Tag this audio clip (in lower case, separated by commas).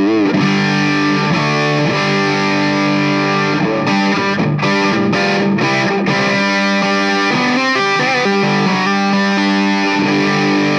music, guitar, electric guitar, plucked string instrument, strum, musical instrument